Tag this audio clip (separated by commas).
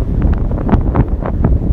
Wind